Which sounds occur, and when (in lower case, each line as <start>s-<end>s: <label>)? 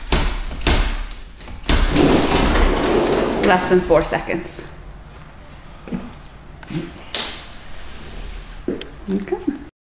0.0s-9.7s: mechanisms
0.1s-1.0s: generic impact sounds
1.1s-1.1s: tick
1.3s-1.5s: generic impact sounds
1.6s-4.0s: sliding door
3.4s-4.8s: female speech
4.4s-4.6s: footsteps
5.2s-5.3s: footsteps
5.5s-6.2s: surface contact
5.8s-6.0s: tap
6.6s-6.9s: generic impact sounds
6.7s-7.1s: human sounds
7.1s-7.3s: generic impact sounds
7.7s-8.5s: surface contact
8.7s-8.9s: tap
8.8s-8.9s: tick
9.1s-9.7s: female speech
9.1s-9.3s: generic impact sounds
9.5s-9.6s: generic impact sounds